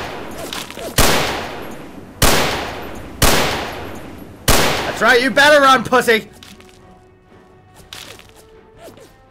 A man speaks while cocking a gun and shooting it.